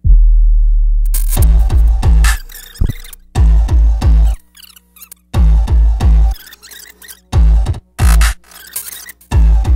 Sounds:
Hum

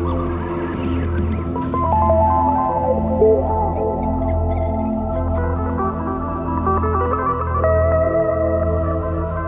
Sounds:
Hum

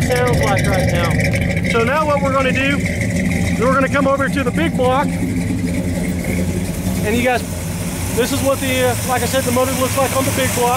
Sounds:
Speech

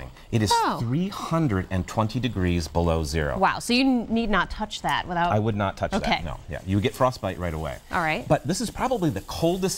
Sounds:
Speech

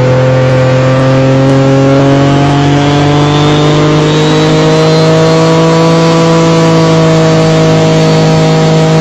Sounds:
Boat, Vehicle, speedboat

